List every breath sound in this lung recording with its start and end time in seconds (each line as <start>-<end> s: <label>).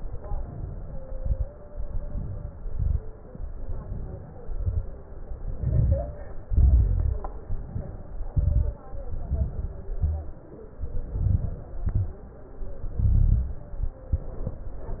0.15-1.00 s: inhalation
1.03-1.51 s: crackles
1.04-1.50 s: exhalation
1.69-2.54 s: inhalation
2.60-3.17 s: exhalation
2.64-3.12 s: crackles
3.52-4.35 s: inhalation
4.43-4.98 s: crackles
4.45-5.01 s: exhalation
5.42-6.25 s: inhalation
5.47-6.22 s: crackles
6.48-7.31 s: exhalation
6.50-7.25 s: crackles
7.47-8.30 s: inhalation
8.32-8.82 s: crackles
8.34-8.81 s: exhalation
9.10-9.85 s: crackles
9.10-9.92 s: inhalation
9.92-10.39 s: exhalation
9.96-10.38 s: crackles
10.85-11.66 s: inhalation
10.85-11.67 s: crackles
11.72-12.23 s: exhalation
11.74-12.22 s: crackles
12.85-13.74 s: inhalation
12.94-13.57 s: crackles
14.14-14.62 s: exhalation
14.14-14.62 s: crackles